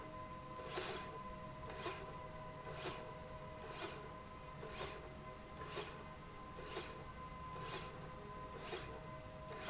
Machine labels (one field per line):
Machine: slide rail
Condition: normal